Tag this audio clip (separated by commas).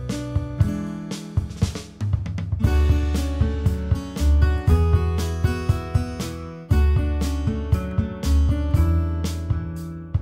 Music